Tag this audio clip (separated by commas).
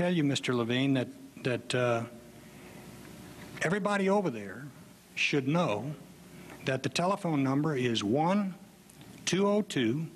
Speech